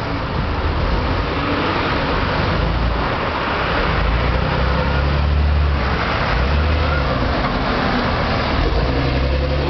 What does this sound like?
A vehicle is running on the road